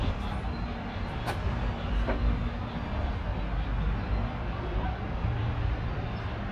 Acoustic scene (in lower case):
residential area